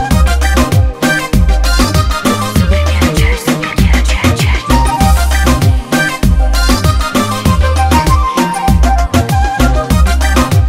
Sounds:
Music of Africa

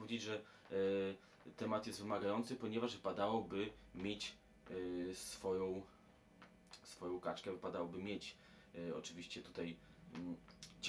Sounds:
Speech

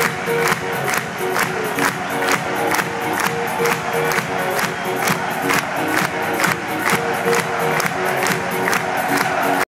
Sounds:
Electronic music, Music, Techno

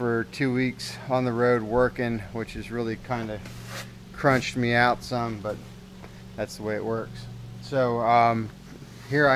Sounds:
Speech

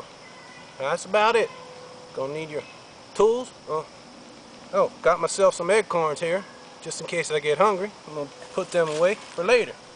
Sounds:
Speech

